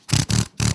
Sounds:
Tools, Drill, Power tool

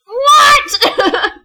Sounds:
Laughter, Human voice

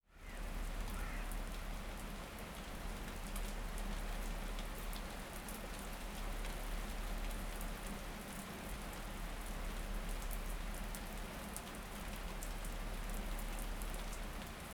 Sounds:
Rain, Bird, Animal, Wild animals, bird call, Water

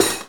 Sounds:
Domestic sounds, Cutlery

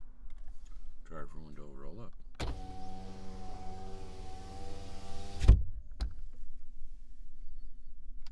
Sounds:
Vehicle, Car, Motor vehicle (road), Engine

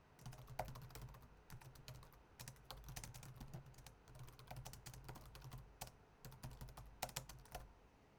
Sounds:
Typing, Domestic sounds

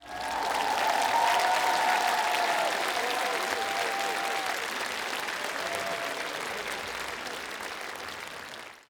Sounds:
Applause, Human group actions

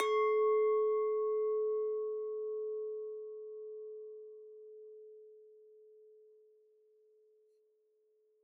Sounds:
clink, Glass

